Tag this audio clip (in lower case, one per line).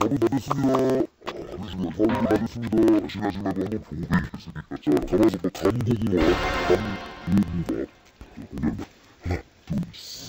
speech
music